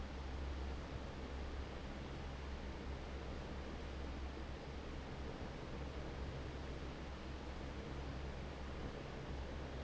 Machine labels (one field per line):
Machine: fan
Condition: normal